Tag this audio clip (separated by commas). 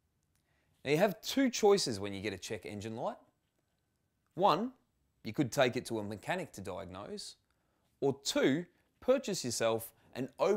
Speech